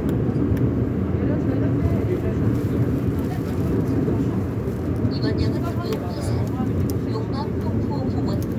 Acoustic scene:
subway train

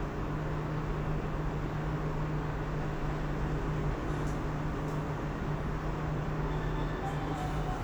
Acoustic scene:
elevator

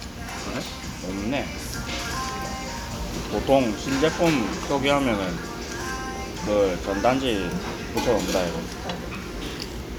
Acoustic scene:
restaurant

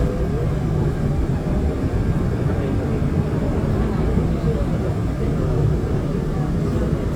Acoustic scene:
subway train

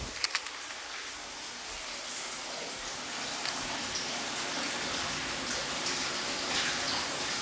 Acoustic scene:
restroom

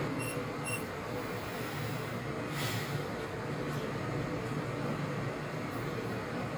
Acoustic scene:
elevator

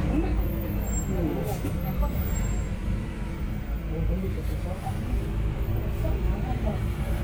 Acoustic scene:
bus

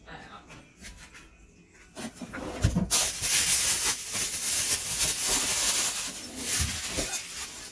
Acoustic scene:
kitchen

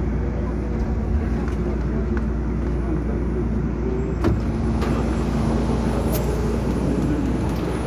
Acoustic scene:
subway train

